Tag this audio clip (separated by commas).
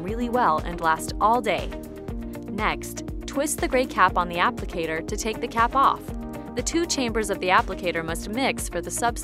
Music, Speech